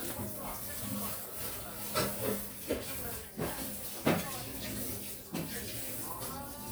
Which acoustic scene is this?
kitchen